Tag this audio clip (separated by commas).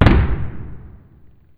Boom, Explosion